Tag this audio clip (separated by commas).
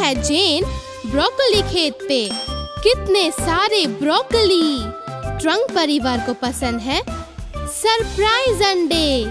people battle cry